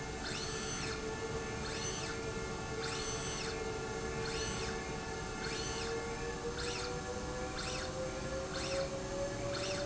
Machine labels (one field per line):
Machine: slide rail